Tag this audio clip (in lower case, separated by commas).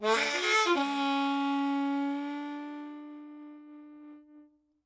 music, musical instrument, harmonica